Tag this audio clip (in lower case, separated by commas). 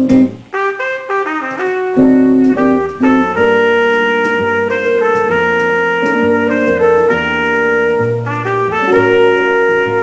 jazz, musical instrument, acoustic guitar, music, strum, plucked string instrument, guitar